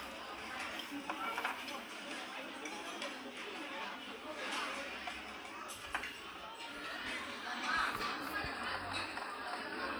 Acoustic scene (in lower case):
restaurant